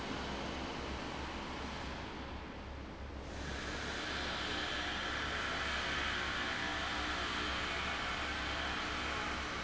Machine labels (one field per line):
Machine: fan